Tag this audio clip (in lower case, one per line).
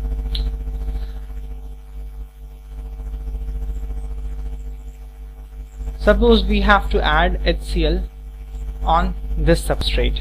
inside a small room
speech